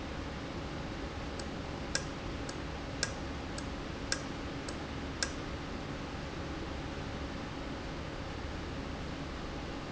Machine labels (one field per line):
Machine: valve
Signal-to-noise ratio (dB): -6 dB